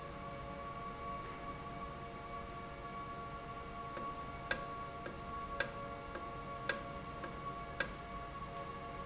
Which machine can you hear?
valve